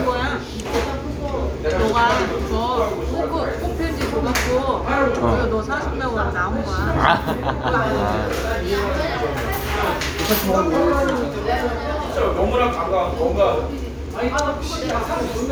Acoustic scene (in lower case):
restaurant